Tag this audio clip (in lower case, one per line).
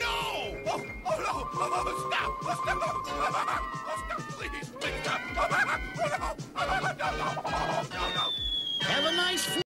music
speech